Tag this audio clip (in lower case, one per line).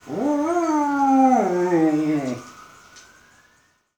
animal
pets
dog